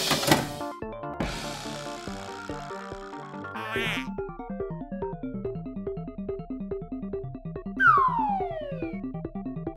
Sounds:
Music for children, Music

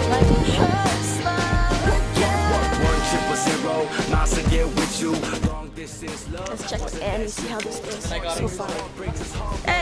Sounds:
Speech, Music

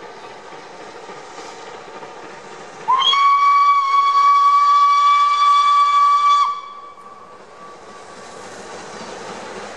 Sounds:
Hiss, Steam, Steam whistle

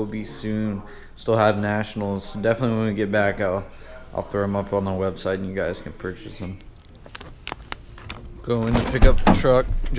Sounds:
outside, urban or man-made, Speech, inside a large room or hall

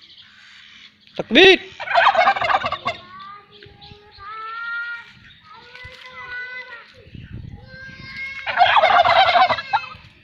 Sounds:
turkey gobbling

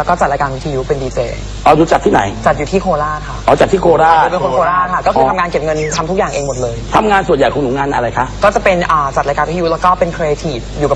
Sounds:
Speech

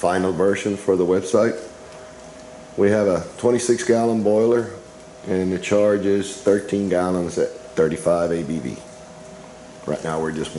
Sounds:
Speech

